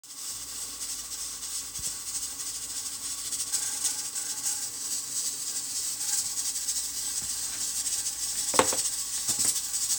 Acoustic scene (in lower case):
kitchen